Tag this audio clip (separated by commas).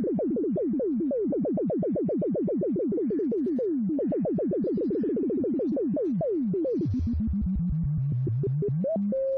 Synthesizer, Music